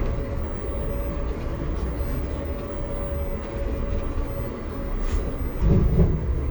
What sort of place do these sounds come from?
bus